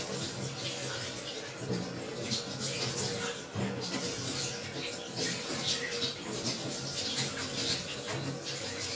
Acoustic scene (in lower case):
restroom